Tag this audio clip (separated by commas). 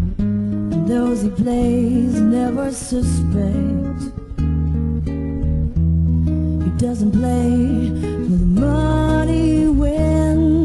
Guitar, Plucked string instrument, Music, Musical instrument